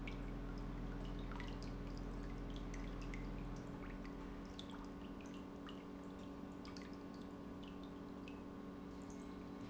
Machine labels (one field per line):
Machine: pump